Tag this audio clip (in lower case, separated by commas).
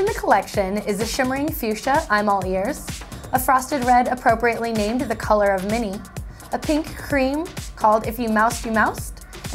speech, music